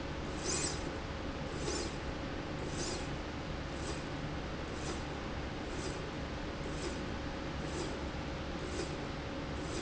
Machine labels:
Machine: slide rail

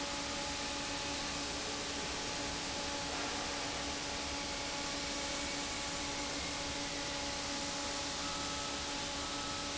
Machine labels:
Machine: fan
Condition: normal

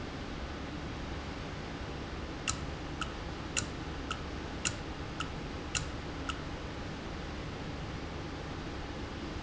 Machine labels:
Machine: valve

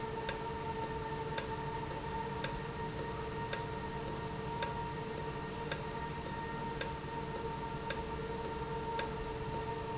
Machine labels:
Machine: valve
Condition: normal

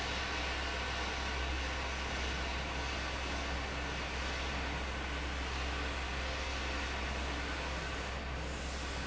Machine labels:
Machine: fan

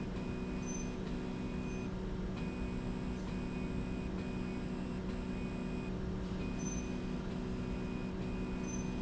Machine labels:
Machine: slide rail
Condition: normal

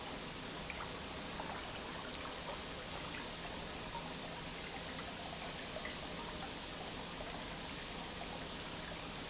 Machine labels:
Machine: pump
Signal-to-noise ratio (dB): 0 dB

